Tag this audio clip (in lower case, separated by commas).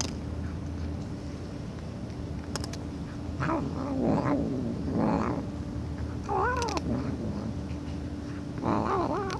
cat caterwauling